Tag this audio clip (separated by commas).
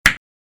Tools, Hammer